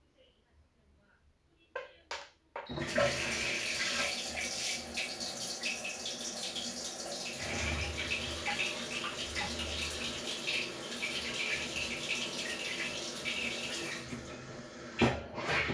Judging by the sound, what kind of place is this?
restroom